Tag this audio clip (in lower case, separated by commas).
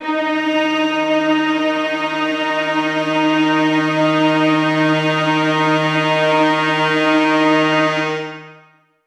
musical instrument, music